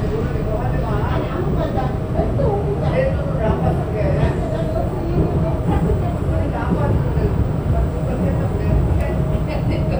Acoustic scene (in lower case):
subway train